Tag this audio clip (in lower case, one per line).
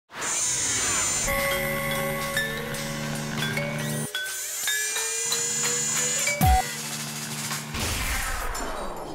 music